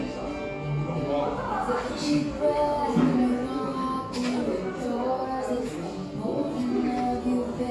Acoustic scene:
cafe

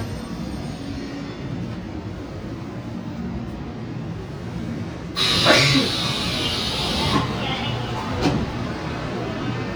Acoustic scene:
subway train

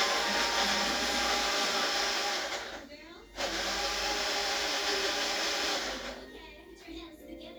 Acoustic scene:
cafe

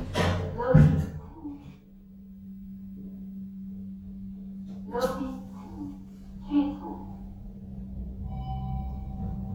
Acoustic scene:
elevator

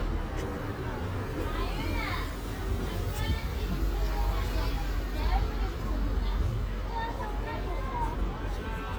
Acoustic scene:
residential area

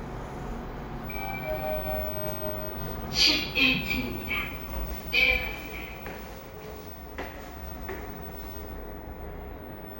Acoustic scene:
elevator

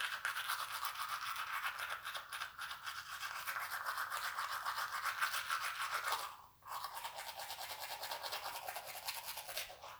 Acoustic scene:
restroom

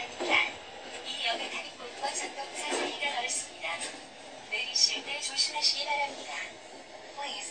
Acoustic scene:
subway train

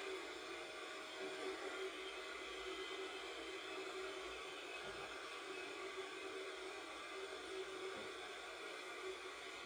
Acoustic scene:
subway train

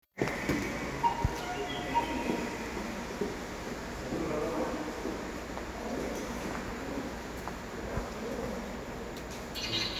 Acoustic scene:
subway station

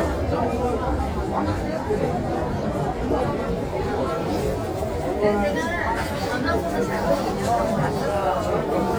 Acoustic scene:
crowded indoor space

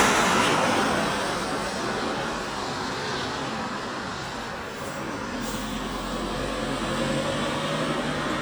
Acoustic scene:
street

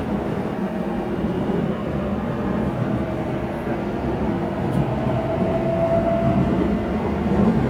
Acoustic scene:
subway train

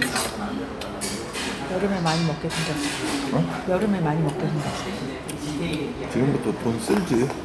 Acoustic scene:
crowded indoor space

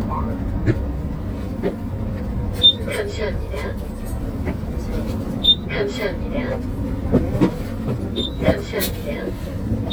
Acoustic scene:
bus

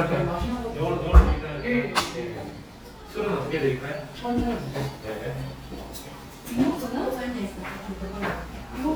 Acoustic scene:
restaurant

